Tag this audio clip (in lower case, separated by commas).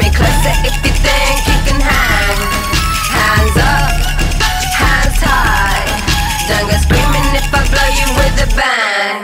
disco, music